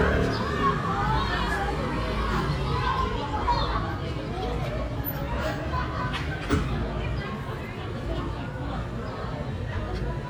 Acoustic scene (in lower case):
residential area